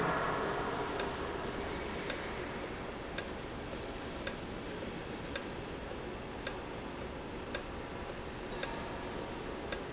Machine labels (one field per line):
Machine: valve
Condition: normal